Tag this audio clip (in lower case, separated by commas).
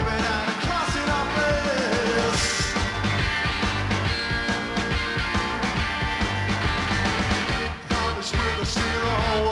music